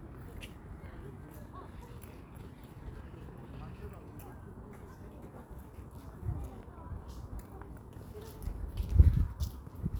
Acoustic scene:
park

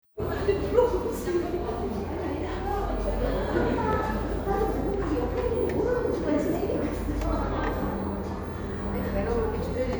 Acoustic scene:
cafe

